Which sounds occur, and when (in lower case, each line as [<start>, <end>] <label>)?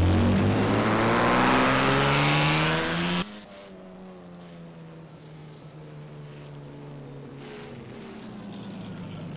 [0.00, 3.20] vroom
[0.00, 9.35] car